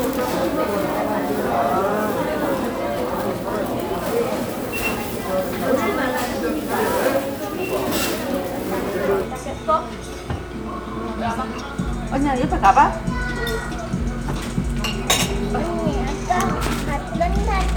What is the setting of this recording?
crowded indoor space